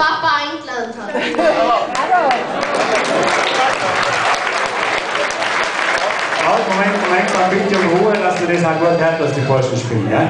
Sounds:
accordion

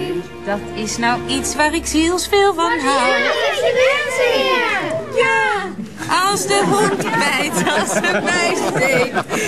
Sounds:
speech
music

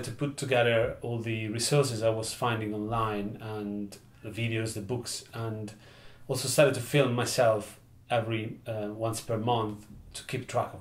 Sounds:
speech

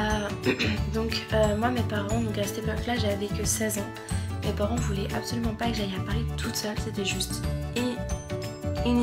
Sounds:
music
speech

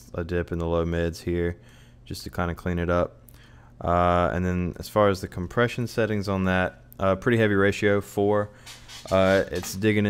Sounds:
speech

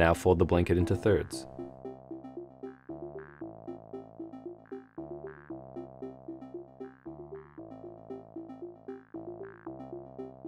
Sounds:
speech
music

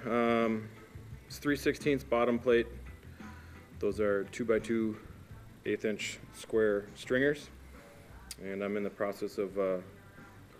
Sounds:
music
speech

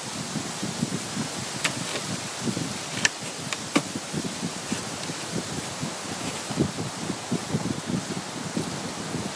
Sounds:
outside, rural or natural

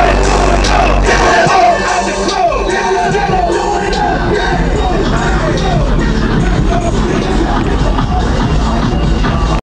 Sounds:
music

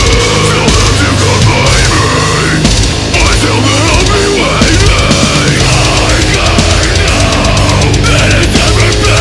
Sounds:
music

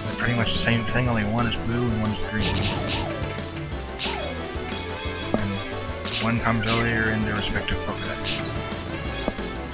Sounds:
speech
music

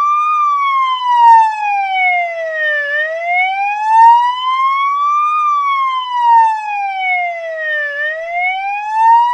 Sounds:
police car (siren)

